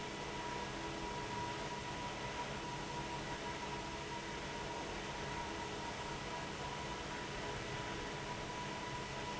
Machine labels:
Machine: fan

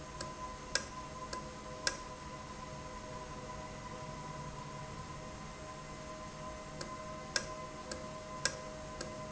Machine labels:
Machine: valve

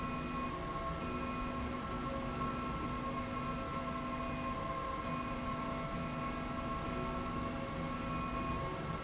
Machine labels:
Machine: slide rail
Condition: normal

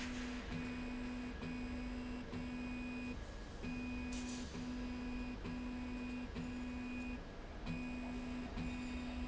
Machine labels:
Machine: slide rail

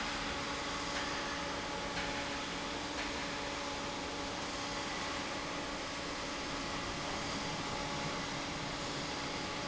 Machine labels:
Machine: fan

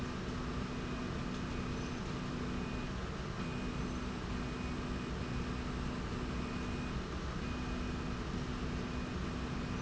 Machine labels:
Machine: slide rail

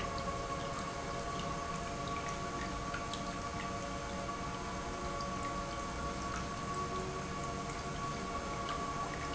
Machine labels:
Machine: pump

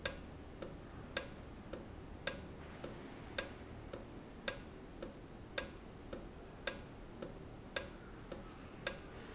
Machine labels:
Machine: valve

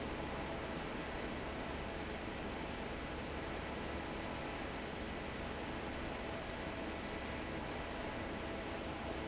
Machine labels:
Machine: fan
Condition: normal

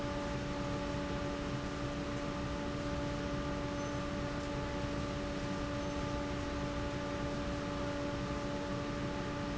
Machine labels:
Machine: fan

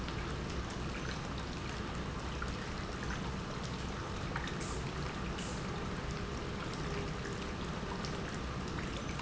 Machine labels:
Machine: pump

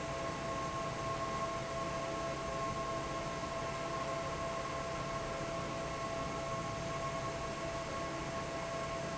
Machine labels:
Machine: fan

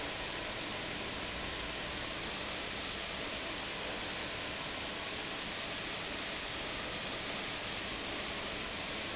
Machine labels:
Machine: fan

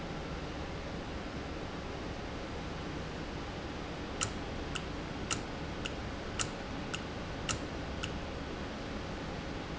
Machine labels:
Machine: valve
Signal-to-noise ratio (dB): -6 dB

